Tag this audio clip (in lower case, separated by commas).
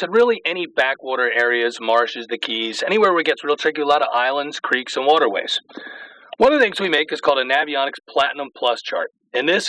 speech